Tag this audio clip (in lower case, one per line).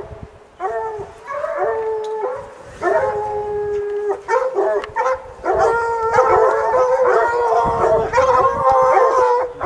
dog baying